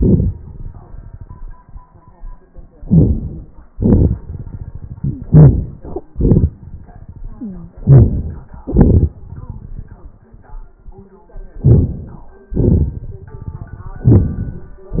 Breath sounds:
2.77-3.69 s: inhalation
2.77-3.69 s: crackles
3.67-4.98 s: exhalation
5.01-5.32 s: wheeze
5.01-6.12 s: inhalation
6.13-7.74 s: exhalation
7.37-7.74 s: wheeze
7.77-8.67 s: inhalation
8.68-10.34 s: exhalation
11.54-12.52 s: inhalation
12.51-13.73 s: exhalation
13.76-14.91 s: inhalation
13.76-14.91 s: crackles

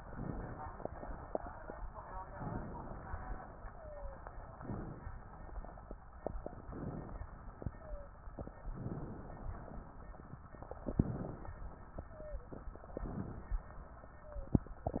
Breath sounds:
2.30-3.68 s: inhalation
3.68-4.23 s: wheeze
4.52-5.24 s: inhalation
6.68-7.40 s: inhalation
7.70-8.14 s: wheeze
8.73-9.79 s: inhalation
10.87-11.61 s: inhalation
12.07-12.62 s: wheeze
12.94-13.68 s: inhalation
14.15-14.71 s: wheeze

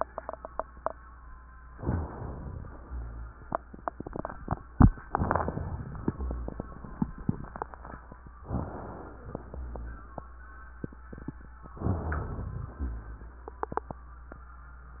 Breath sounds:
1.76-2.79 s: inhalation
2.85-3.40 s: rhonchi
5.10-6.05 s: inhalation
6.09-6.64 s: rhonchi
8.44-9.39 s: inhalation
9.53-10.08 s: rhonchi
11.84-12.79 s: inhalation
12.85-13.40 s: rhonchi

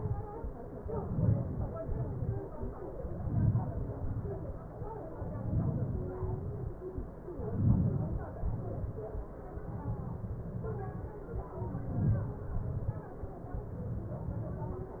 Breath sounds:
1.03-1.63 s: inhalation
1.86-2.29 s: exhalation
3.27-3.87 s: inhalation
4.00-4.29 s: exhalation
5.44-6.19 s: inhalation
6.26-6.75 s: exhalation
7.51-8.23 s: inhalation
8.33-8.56 s: exhalation
11.85-12.59 s: inhalation
12.65-13.02 s: exhalation

